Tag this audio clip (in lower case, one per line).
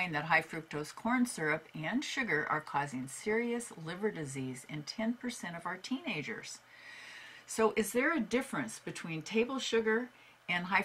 speech